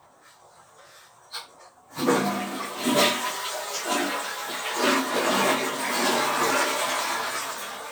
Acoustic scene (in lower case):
restroom